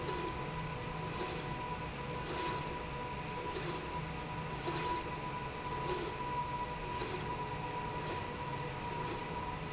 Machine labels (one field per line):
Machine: slide rail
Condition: normal